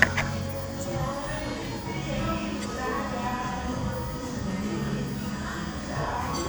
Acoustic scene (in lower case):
cafe